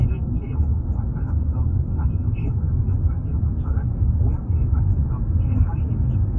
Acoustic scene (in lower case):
car